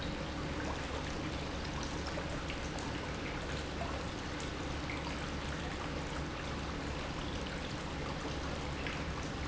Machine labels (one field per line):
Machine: pump